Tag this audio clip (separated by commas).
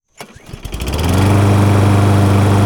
Engine, Engine starting